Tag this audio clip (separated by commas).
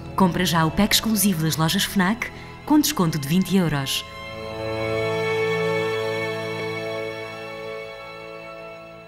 Speech, Music